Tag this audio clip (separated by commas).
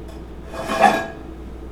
dishes, pots and pans, Domestic sounds